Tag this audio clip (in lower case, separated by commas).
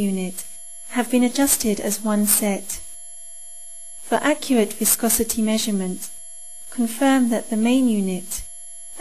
speech, narration